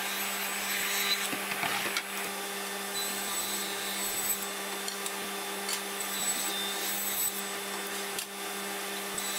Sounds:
Tools, inside a large room or hall, Wood

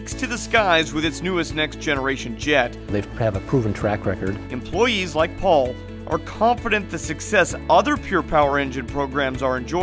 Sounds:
Music, Speech

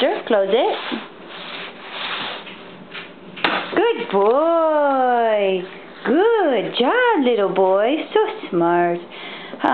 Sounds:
Speech

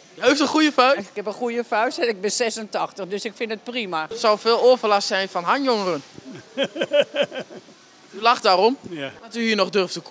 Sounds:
Speech

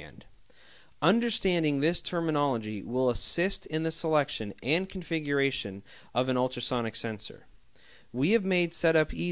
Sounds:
Speech

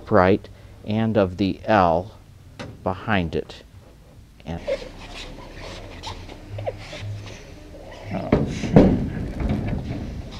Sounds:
Speech

